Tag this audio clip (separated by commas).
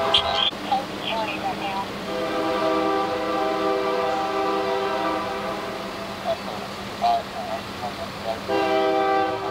Train horn, train horning